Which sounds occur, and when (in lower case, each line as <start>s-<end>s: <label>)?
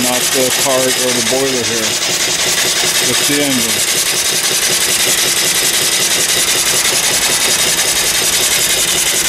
0.0s-1.9s: male speech
0.0s-9.2s: mechanisms
0.0s-9.2s: steam
2.9s-3.8s: male speech